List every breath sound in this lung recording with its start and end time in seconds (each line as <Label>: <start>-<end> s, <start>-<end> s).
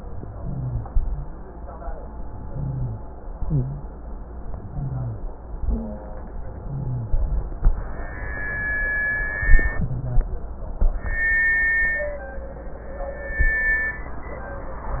Inhalation: 0.36-0.86 s, 2.45-3.02 s, 4.71-5.24 s, 6.60-7.10 s, 9.77-10.27 s
Exhalation: 0.89-1.29 s, 3.44-3.91 s, 5.62-6.15 s, 7.14-7.63 s
Wheeze: 3.44-3.91 s, 4.71-5.24 s, 5.62-6.15 s, 6.60-7.10 s, 9.77-10.27 s
Rhonchi: 0.36-0.86 s, 0.89-1.29 s, 2.45-3.02 s, 7.14-7.63 s